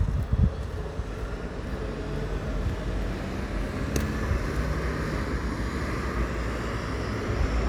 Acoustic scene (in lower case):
street